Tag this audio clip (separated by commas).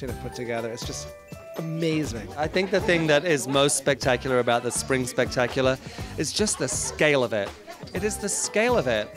Music, Speech